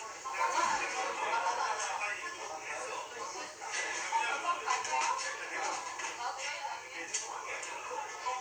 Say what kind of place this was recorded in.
crowded indoor space